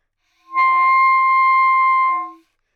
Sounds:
music, wind instrument, musical instrument

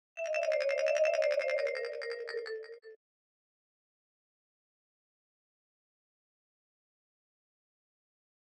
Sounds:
mallet percussion, musical instrument, marimba, music, percussion

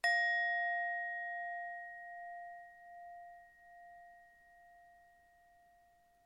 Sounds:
music, musical instrument

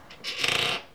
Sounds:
squeak

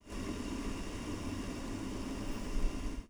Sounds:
liquid, boiling

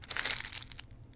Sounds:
crushing

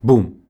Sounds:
human voice

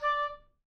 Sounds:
music, musical instrument, woodwind instrument

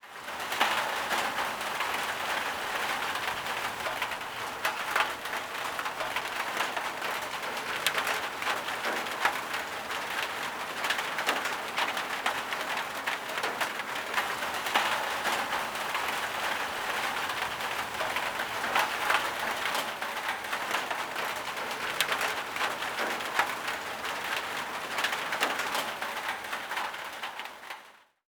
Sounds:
rain, water

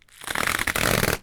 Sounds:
tearing

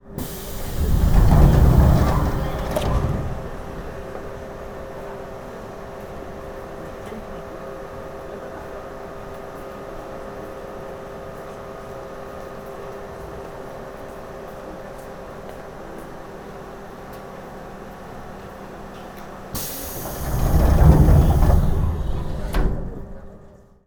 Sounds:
subway, rail transport, vehicle

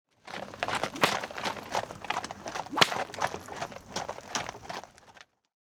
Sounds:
animal, livestock

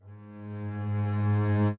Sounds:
music, bowed string instrument, musical instrument

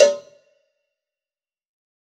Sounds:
cowbell, bell

